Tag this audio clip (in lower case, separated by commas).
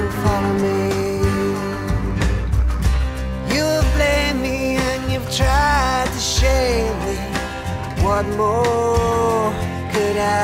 music, independent music